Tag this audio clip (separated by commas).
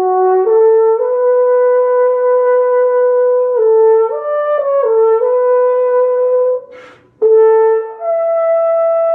playing french horn